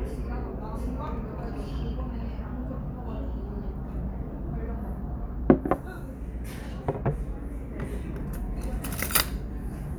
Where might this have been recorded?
in a restaurant